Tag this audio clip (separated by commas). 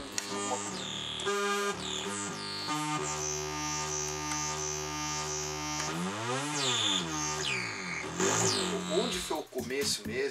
Speech, Music